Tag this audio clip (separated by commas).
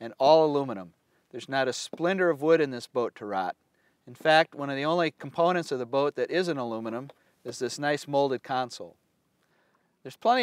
Speech